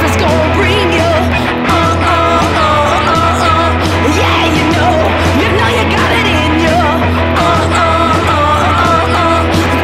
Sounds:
music

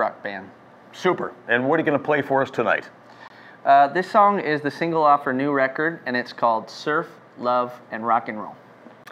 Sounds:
speech

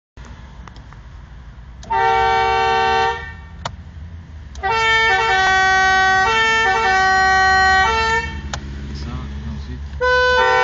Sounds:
honking

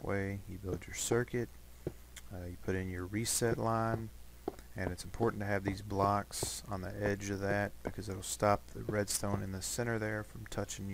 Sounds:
speech

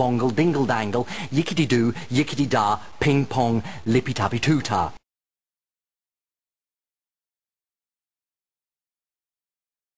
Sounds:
speech

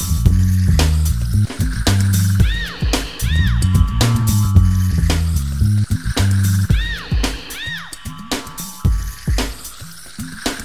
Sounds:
music

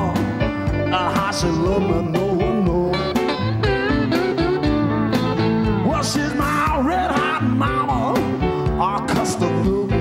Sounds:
music

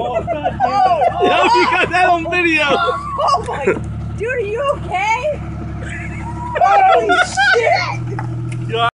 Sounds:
speech

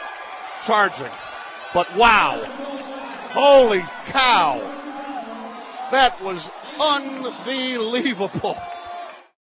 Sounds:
speech

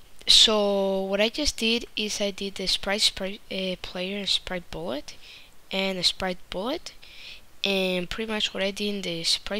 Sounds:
speech

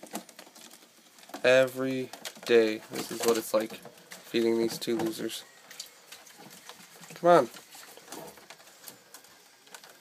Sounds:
speech

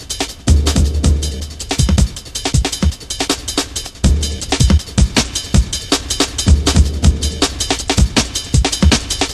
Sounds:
music

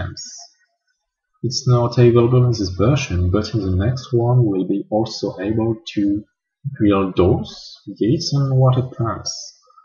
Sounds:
speech

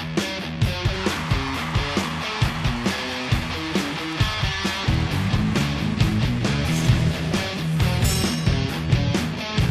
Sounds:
guitar
electric guitar
music
plucked string instrument
musical instrument
bass guitar

